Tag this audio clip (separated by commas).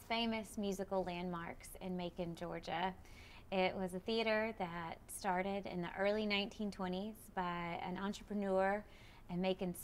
Female speech, Speech